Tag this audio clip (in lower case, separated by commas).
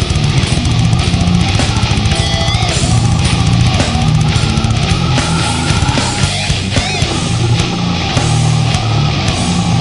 heavy metal, music